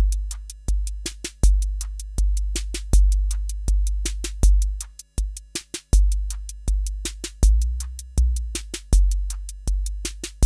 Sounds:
drum machine
music
musical instrument

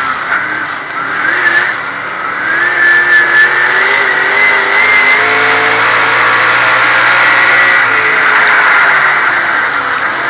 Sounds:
skidding
motor vehicle (road)
vehicle
car

